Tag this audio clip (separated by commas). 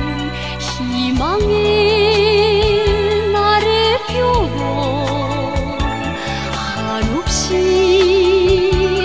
Music